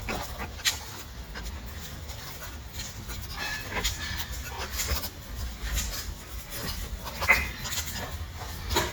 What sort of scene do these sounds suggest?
park